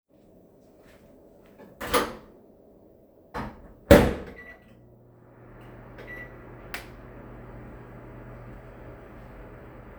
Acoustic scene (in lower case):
kitchen